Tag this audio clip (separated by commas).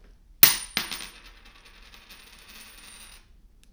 home sounds, Coin (dropping)